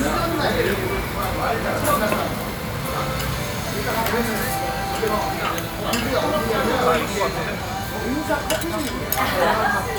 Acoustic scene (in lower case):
crowded indoor space